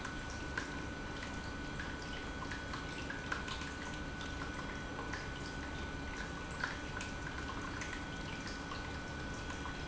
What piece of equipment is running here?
pump